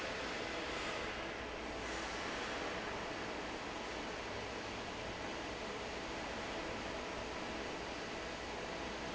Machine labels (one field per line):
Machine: fan